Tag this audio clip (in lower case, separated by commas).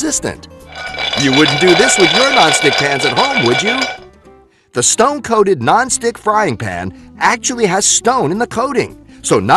speech, music